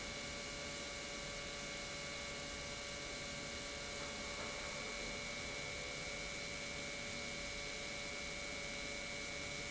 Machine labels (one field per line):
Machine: pump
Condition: normal